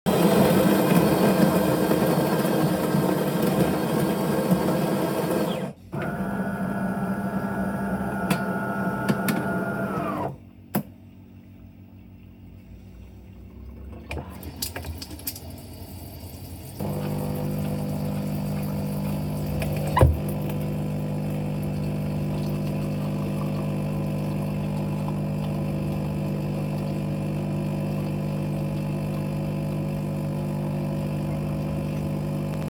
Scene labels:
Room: kitchen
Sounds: coffee machine, running water

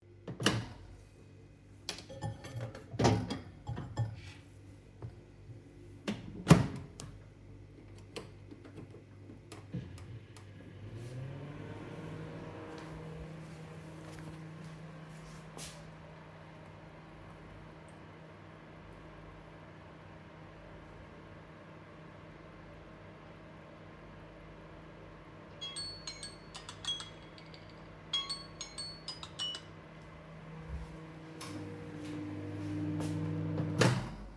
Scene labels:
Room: kitchen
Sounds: microwave, cutlery and dishes, footsteps, phone ringing

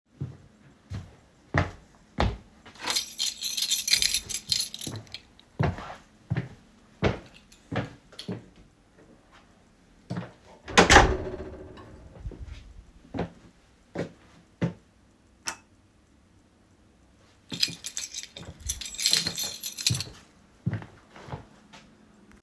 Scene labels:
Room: living room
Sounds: footsteps, keys, door

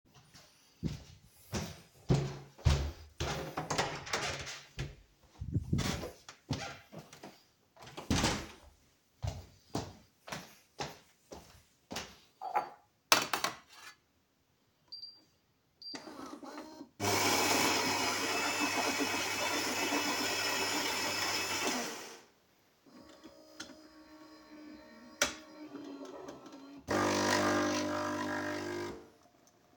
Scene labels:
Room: kitchen, living room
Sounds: footsteps, door, coffee machine

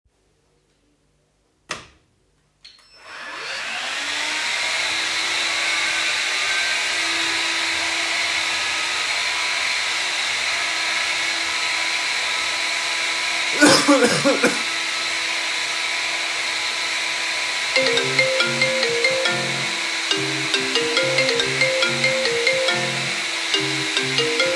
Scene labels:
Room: living room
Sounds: light switch, vacuum cleaner, phone ringing

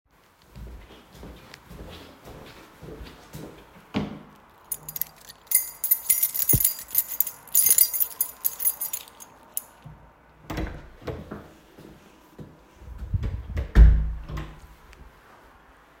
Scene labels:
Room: hallway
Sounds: footsteps, keys, door (more than once)

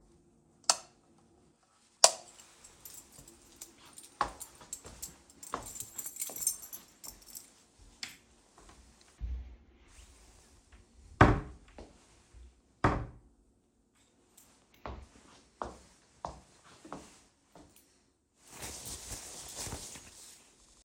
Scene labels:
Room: bedroom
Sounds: light switch, keys, footsteps, wardrobe or drawer (more than once)

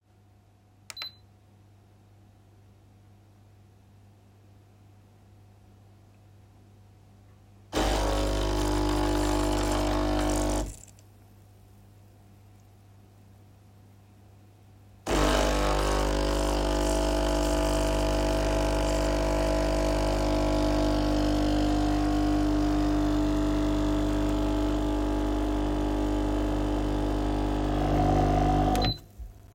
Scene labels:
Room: kitchen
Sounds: coffee machine

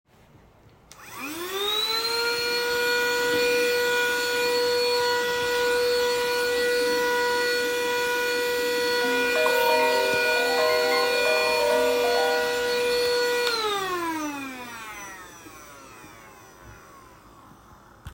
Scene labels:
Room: bedroom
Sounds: vacuum cleaner, phone ringing

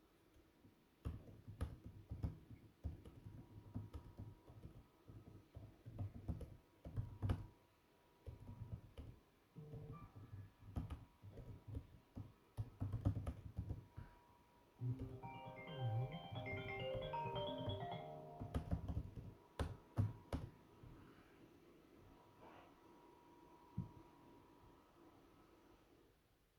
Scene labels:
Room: living room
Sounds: vacuum cleaner, keyboard typing, phone ringing

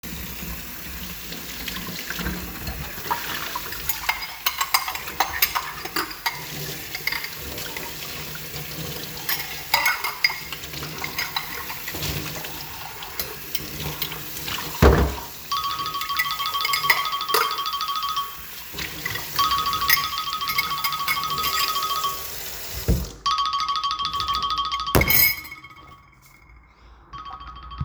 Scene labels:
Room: kitchen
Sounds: running water, cutlery and dishes, phone ringing

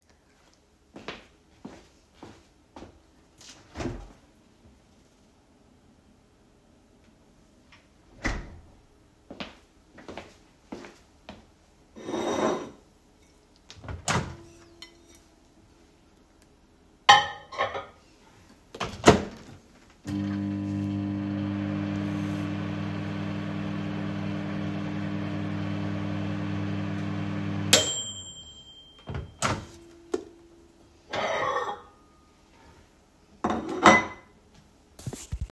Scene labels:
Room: pantry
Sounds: footsteps, cutlery and dishes, microwave

